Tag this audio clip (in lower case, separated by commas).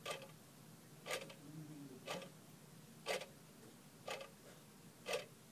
mechanisms, clock